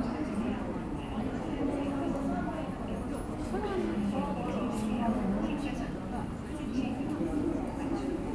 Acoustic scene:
subway station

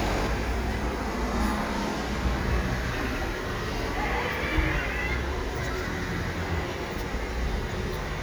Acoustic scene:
residential area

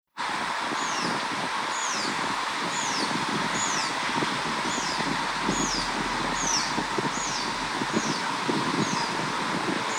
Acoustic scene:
park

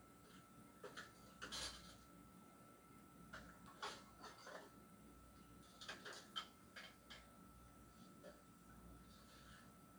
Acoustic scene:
kitchen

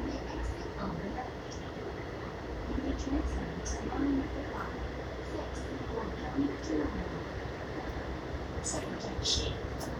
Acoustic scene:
subway train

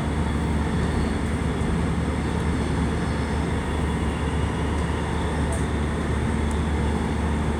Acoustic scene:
subway train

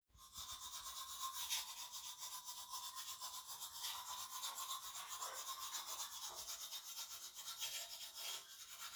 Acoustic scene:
restroom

